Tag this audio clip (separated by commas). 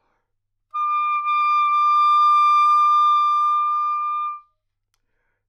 Musical instrument, woodwind instrument, Music